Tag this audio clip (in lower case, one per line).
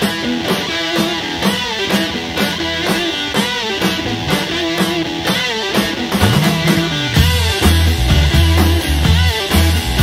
punk rock